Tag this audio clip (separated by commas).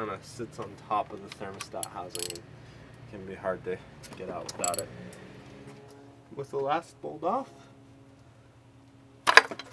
Speech, outside, urban or man-made